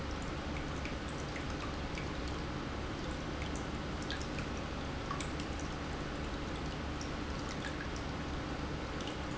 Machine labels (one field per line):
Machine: pump